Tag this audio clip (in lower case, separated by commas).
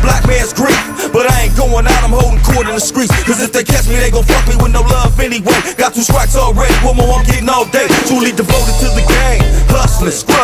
music